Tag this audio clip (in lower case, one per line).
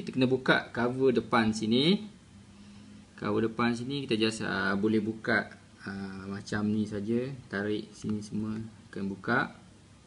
speech